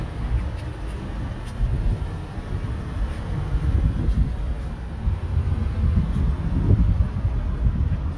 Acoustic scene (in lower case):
street